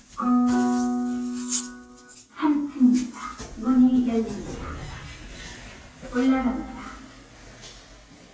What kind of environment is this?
elevator